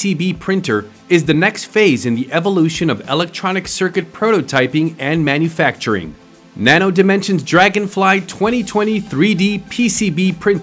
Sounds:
Speech

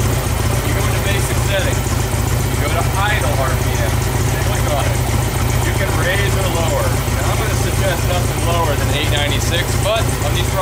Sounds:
Speech

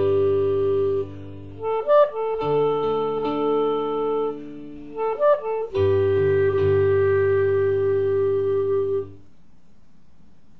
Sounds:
Piano, Music, Clarinet

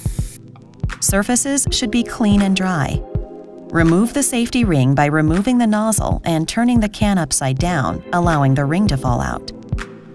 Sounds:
Speech, Music, Spray

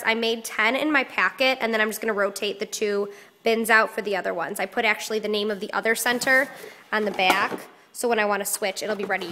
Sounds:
Speech

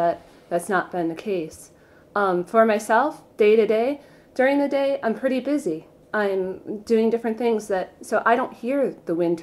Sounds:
Speech

